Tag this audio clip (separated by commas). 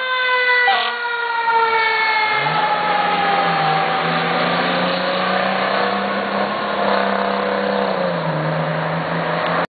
Siren, Emergency vehicle, fire truck (siren)